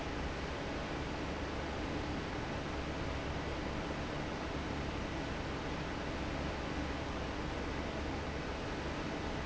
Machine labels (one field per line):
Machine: fan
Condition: normal